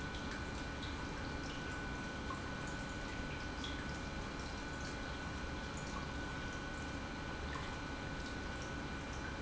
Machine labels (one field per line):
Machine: pump